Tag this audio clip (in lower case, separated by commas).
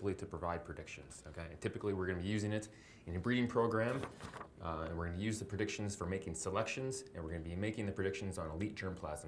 speech